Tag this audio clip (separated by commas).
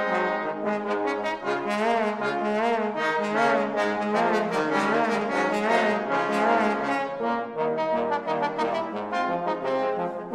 Music, Trombone